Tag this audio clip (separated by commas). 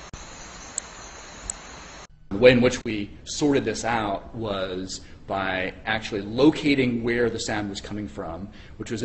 Speech